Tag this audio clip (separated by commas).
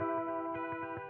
Musical instrument, Plucked string instrument, Electric guitar, Guitar, Music